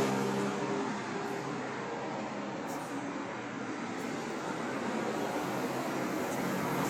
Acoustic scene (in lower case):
street